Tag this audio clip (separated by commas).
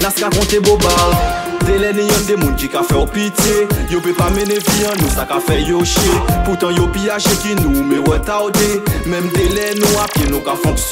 Music